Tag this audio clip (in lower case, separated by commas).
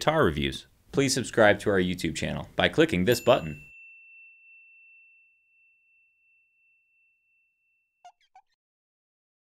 clink, speech, inside a small room